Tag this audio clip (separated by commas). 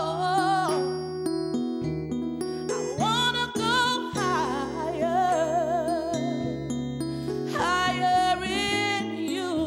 Female singing, Music